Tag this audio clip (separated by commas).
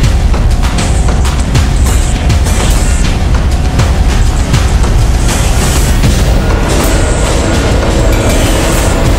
Music